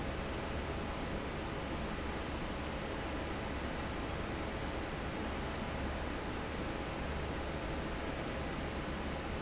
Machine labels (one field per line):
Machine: fan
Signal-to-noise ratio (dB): -6 dB